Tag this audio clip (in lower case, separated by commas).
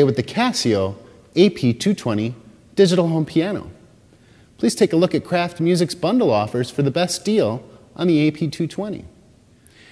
speech